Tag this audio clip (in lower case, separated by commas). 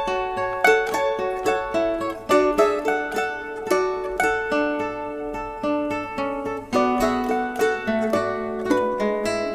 music